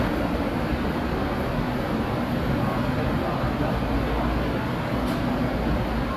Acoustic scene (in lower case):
subway station